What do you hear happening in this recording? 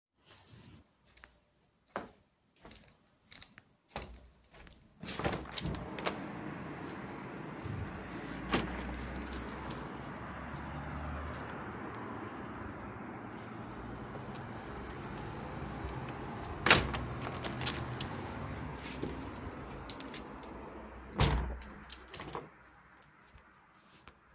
I walked toward the window, I opened window, and I closed the window.